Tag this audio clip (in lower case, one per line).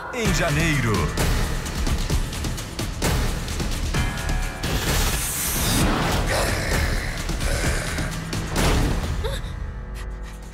dinosaurs bellowing